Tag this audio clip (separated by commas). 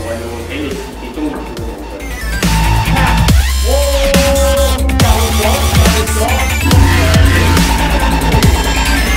Music, Dubstep, Speech, Electronic music